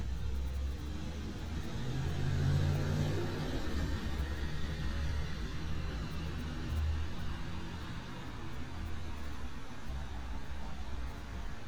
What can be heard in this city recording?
small-sounding engine, medium-sounding engine